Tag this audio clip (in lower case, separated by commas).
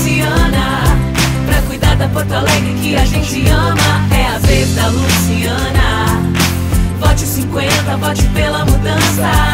pop music, music